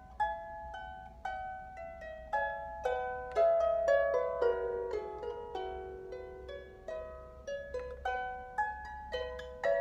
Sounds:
playing harp

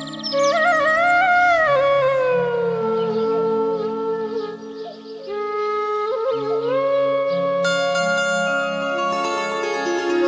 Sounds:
Music

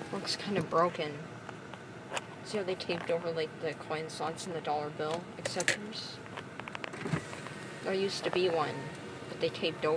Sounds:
Speech, Vehicle, Car

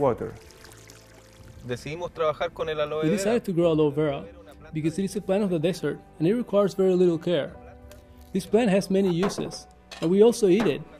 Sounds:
raining

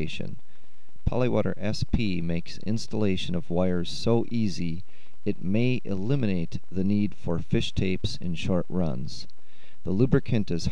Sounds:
Speech

